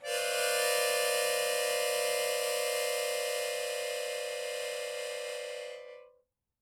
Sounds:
musical instrument, harmonica, music

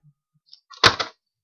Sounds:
door, domestic sounds, slam

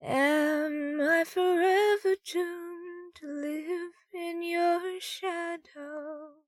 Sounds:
singing, human voice, female singing

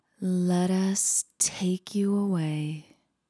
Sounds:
woman speaking, speech, human voice

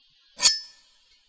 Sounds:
home sounds, cutlery

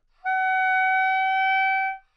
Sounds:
musical instrument, woodwind instrument, music

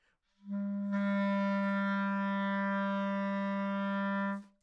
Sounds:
music, musical instrument, wind instrument

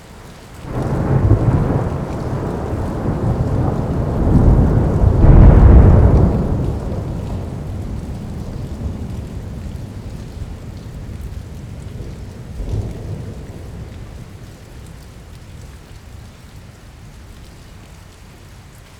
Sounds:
thunder, water, rain, thunderstorm

